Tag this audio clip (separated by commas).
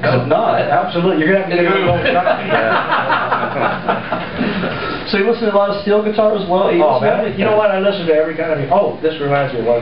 Speech